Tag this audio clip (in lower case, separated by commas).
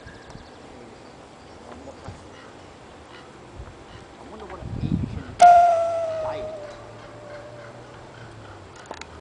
waterfall, speech